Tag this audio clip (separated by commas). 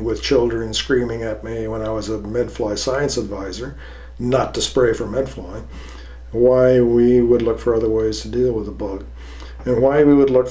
Speech